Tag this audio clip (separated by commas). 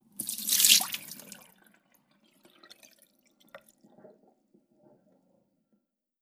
Water tap, Sink (filling or washing), Domestic sounds